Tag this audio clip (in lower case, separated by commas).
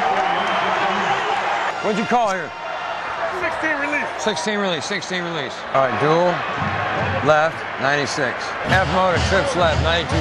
music, speech